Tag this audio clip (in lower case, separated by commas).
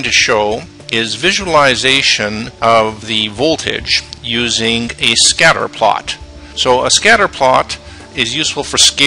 speech, music